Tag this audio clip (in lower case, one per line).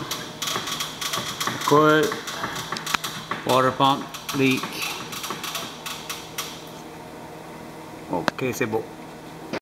speech